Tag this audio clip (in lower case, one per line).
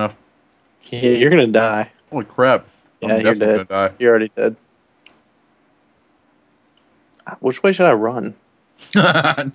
speech